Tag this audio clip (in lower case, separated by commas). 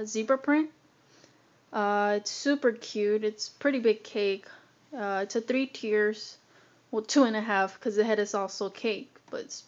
speech